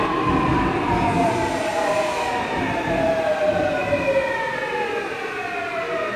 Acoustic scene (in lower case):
subway station